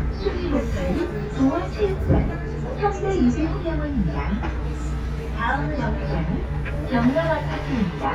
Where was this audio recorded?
on a bus